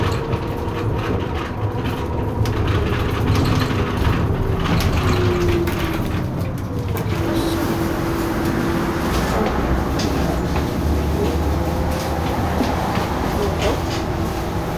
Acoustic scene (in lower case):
bus